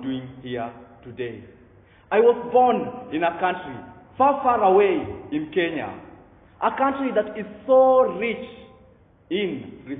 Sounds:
Speech, monologue, Male speech

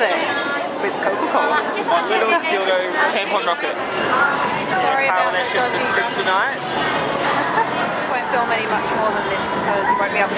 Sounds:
Chatter, inside a public space, Speech

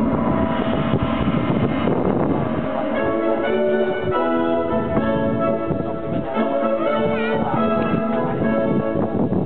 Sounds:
Speech, Horse, Music, Animal, Clip-clop

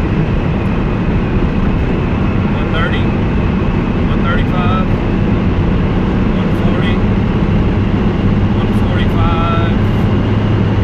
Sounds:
Speech

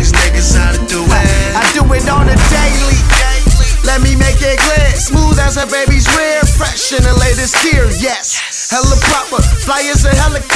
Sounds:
Exciting music, Music

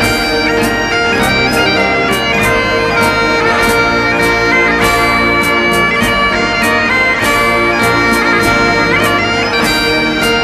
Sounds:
Bagpipes, Music, playing bagpipes

